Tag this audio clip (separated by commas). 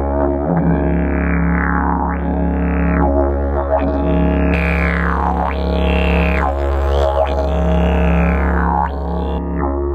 playing didgeridoo